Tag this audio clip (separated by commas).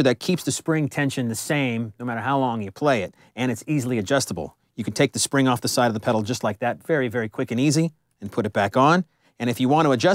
Speech